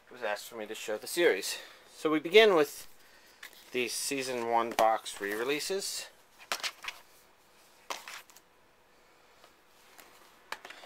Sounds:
speech, inside a small room

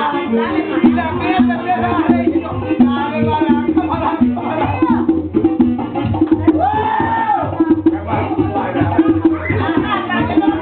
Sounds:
music

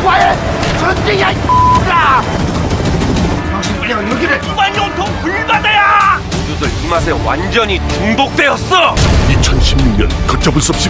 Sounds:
music, speech

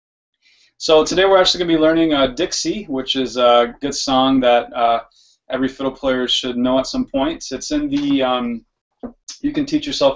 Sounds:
speech

